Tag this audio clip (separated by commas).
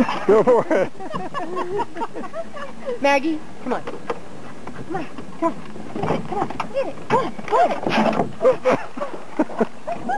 Animal, Speech, Stream